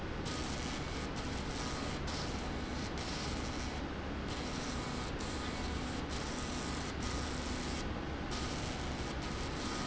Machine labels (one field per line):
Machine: slide rail